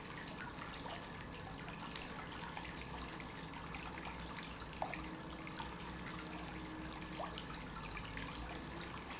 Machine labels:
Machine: pump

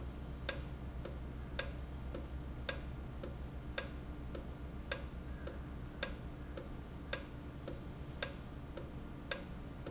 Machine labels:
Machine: valve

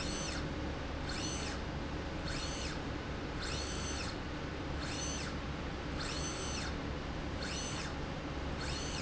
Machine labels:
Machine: slide rail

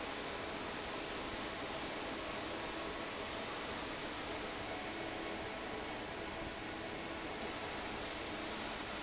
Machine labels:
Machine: fan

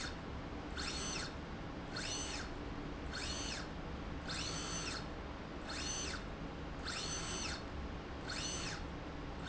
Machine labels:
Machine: slide rail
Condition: normal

